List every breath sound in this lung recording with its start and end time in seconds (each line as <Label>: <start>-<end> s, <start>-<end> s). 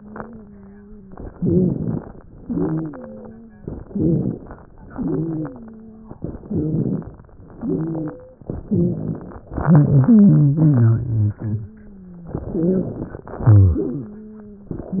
Inhalation: 1.31-2.22 s, 3.74-4.65 s, 6.24-7.12 s, 8.61-9.49 s, 12.37-13.21 s
Exhalation: 2.39-3.19 s, 4.80-5.60 s, 7.57-8.45 s, 13.30-14.14 s
Wheeze: 0.00-1.12 s, 2.39-3.66 s, 4.80-6.21 s, 7.57-8.45 s, 12.37-13.21 s, 13.30-14.78 s
Rhonchi: 1.31-2.22 s, 3.74-4.65 s, 6.24-7.12 s, 8.61-9.49 s